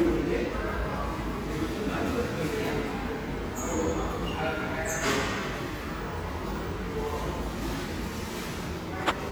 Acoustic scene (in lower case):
crowded indoor space